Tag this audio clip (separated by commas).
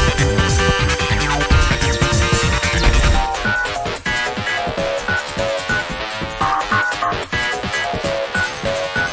Music, Background music